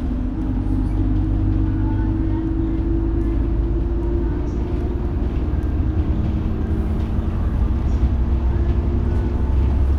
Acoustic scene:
bus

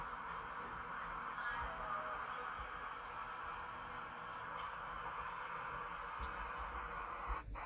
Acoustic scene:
park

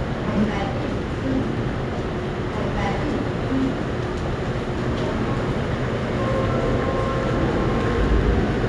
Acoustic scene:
subway station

